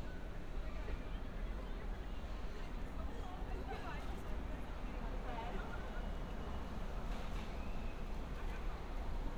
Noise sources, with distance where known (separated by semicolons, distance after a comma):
person or small group talking, near